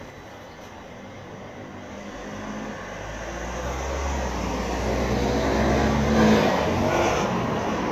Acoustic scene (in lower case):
street